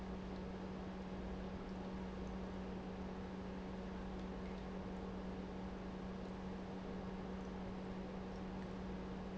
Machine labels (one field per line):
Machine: pump